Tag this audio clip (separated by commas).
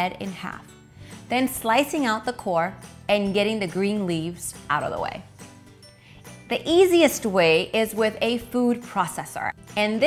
chopping food